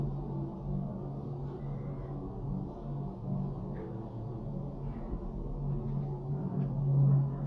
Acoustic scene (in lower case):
elevator